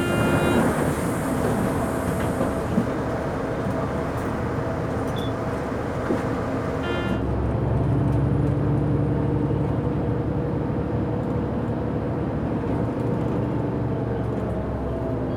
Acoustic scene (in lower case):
bus